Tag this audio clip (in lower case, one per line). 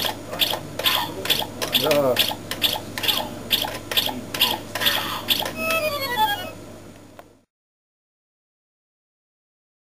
music